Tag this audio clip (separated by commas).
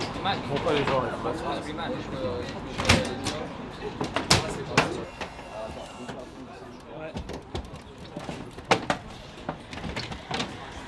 Speech